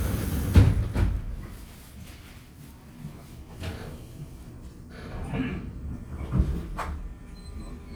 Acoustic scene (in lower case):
subway train